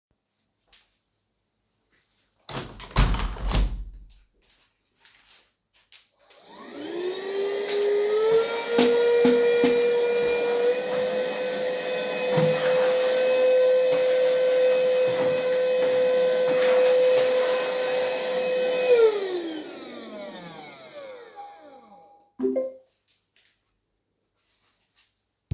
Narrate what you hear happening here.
I moved the chairs aside and started vacuuming. Afterwards a notification popped up on my smartphone.